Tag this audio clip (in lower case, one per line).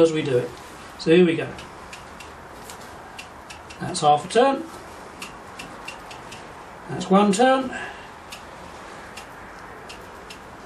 speech